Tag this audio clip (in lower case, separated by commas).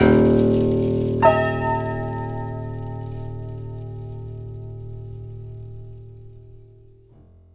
keyboard (musical), music, piano, musical instrument